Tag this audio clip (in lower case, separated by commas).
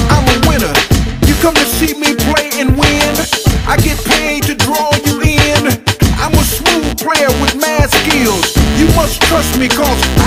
music